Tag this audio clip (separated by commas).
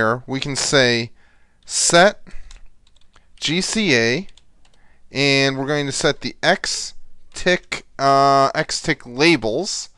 Speech, Tick